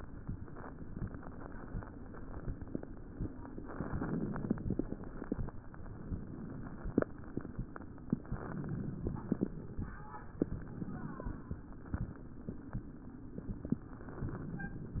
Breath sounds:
Inhalation: 3.62-4.62 s, 8.14-9.29 s, 13.65-14.80 s

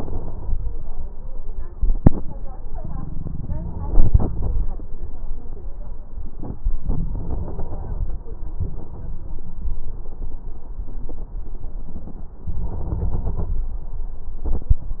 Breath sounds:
Inhalation: 0.00-0.56 s, 3.72-4.79 s, 6.84-8.22 s, 12.45-13.68 s

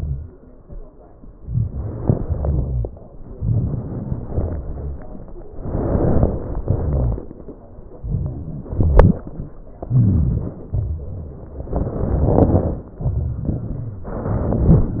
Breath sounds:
Inhalation: 1.45-2.09 s, 3.38-3.95 s, 8.04-8.69 s, 9.97-10.58 s
Exhalation: 2.30-2.78 s, 4.32-4.79 s, 8.79-9.32 s, 10.76-11.22 s

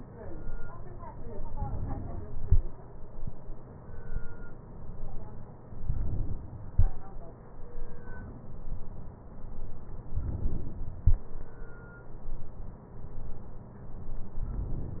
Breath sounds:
Inhalation: 5.80-6.72 s, 10.12-11.04 s

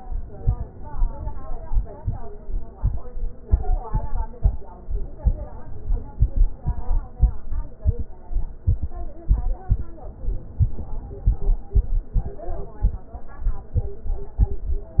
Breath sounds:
Inhalation: 0.25-1.64 s, 5.18-6.57 s, 10.20-11.59 s

